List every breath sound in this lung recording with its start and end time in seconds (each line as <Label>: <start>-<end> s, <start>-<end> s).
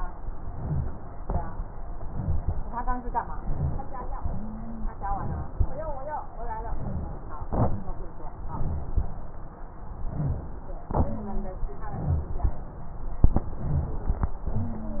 Inhalation: 0.27-0.99 s, 2.05-2.68 s, 3.36-4.08 s, 5.05-5.56 s, 6.68-7.40 s, 8.37-8.98 s, 10.02-10.65 s, 11.88-12.51 s, 13.53-14.16 s
Exhalation: 1.27-1.77 s
Wheeze: 4.23-4.95 s, 11.01-11.63 s
Rhonchi: 3.36-3.91 s, 10.02-10.65 s